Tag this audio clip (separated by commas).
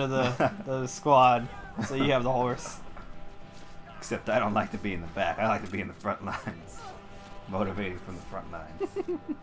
Speech, Music